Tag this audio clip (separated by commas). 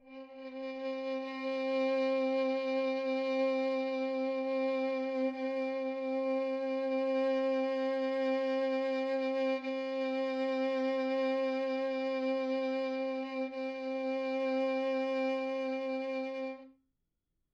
Musical instrument, Bowed string instrument, Music